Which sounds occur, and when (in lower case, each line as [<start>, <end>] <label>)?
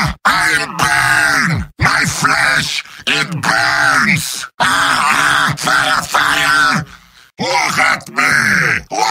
[6.79, 7.28] breathing
[7.35, 9.10] speech synthesizer
[7.96, 8.11] generic impact sounds